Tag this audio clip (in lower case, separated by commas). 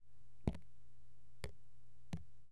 raindrop, rain, water, liquid, drip